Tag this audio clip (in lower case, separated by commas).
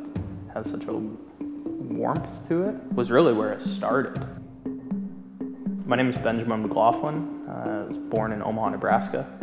music, speech